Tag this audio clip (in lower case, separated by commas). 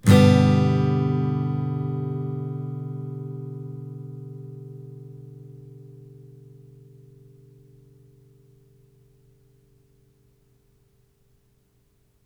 music, plucked string instrument, guitar, strum, musical instrument